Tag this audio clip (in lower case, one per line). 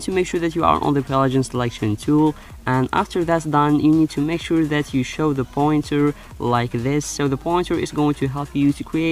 speech
music